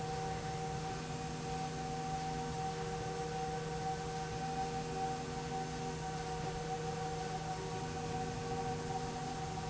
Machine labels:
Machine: slide rail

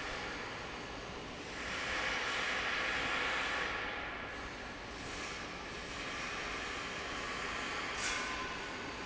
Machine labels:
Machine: fan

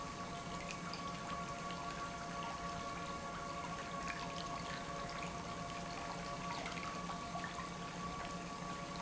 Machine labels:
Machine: pump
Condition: normal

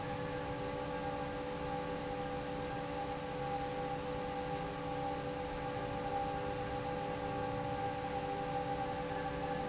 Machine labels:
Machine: fan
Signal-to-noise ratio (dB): -6 dB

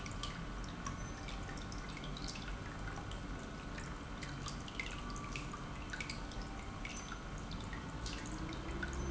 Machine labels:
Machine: pump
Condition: normal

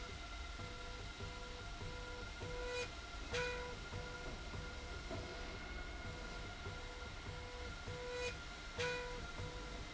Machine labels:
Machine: slide rail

